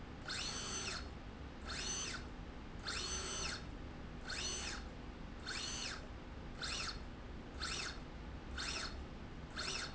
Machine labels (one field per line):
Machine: slide rail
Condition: normal